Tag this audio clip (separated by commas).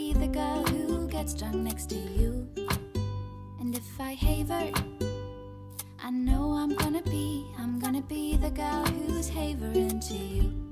Music